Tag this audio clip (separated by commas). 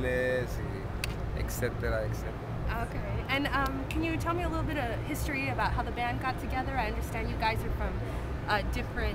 Speech